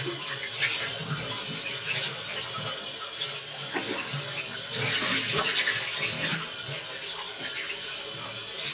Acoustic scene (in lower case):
restroom